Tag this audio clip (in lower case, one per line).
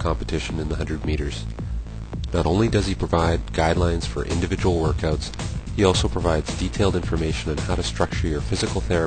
music
speech